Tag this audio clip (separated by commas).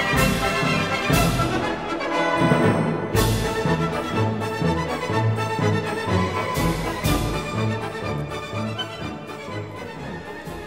Music